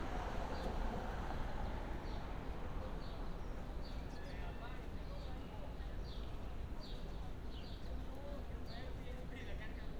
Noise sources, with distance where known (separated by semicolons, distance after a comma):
person or small group talking, far